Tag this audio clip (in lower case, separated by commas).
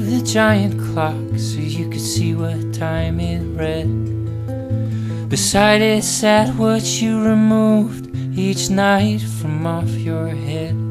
music